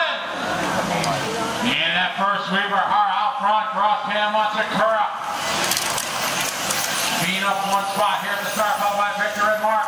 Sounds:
speech

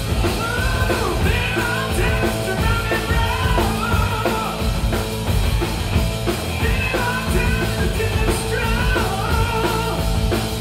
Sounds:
music

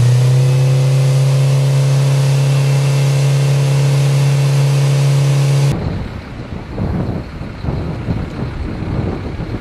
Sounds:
wind noise (microphone)
vehicle

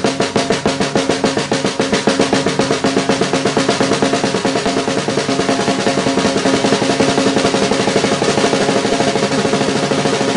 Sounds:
playing snare drum

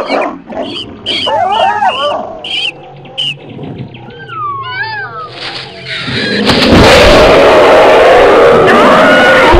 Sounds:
dinosaurs bellowing

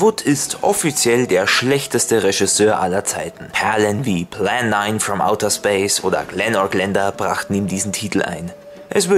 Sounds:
music
speech

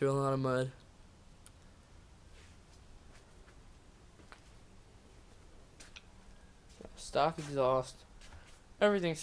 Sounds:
speech
footsteps

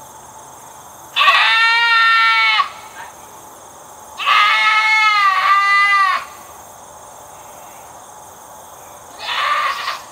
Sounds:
goat bleating

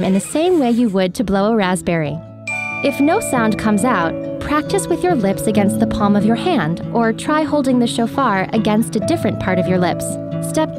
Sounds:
music
musical instrument
speech

